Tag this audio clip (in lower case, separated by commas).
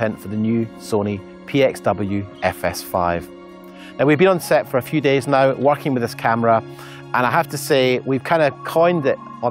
speech, music